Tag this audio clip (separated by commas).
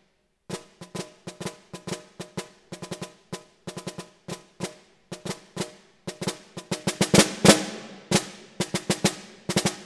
Music, Percussion, Musical instrument, Drum, Drum kit